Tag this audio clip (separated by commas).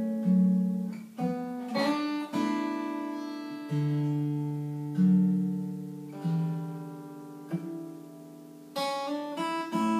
Music, Musical instrument, Acoustic guitar, Guitar